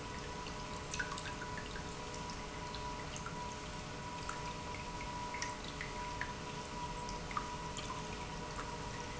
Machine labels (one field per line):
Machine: pump